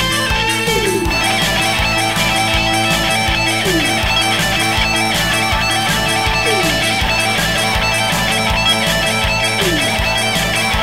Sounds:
Bass guitar, Plucked string instrument, Guitar, Strum, Music, Musical instrument

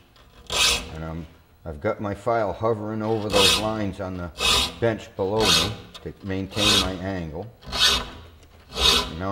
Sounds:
Rub, Filing (rasp)

